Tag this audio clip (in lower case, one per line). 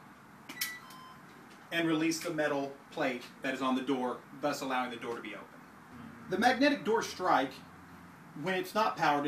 speech